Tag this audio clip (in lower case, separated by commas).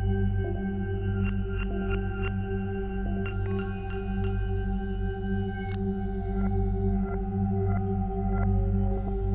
music